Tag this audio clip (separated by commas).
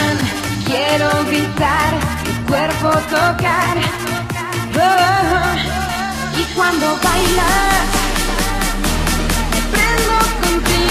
Electronic music, Techno, Electronica, Music, Music of Asia